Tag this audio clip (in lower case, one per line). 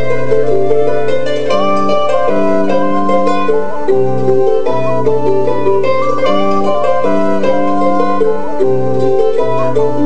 music
musical instrument